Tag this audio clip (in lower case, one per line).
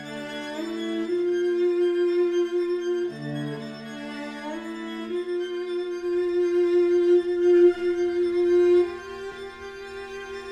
cello
music
violin